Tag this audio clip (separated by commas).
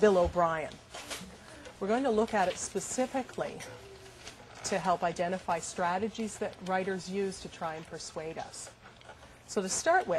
Speech